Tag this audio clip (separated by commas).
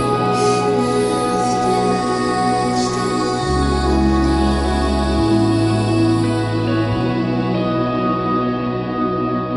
Music, Lullaby